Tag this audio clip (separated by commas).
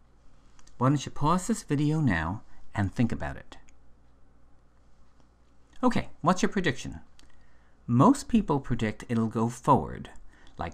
Speech